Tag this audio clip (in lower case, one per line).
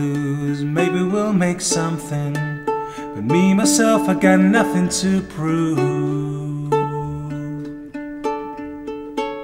music